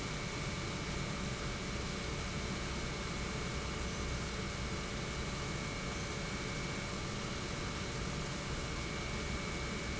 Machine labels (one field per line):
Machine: pump